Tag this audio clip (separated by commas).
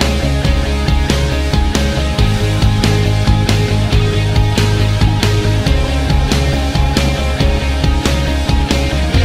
Music